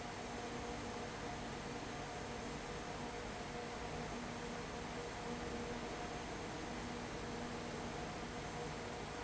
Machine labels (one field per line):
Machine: fan